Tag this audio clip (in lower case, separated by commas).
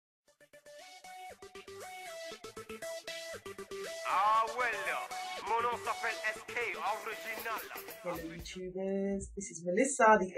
singing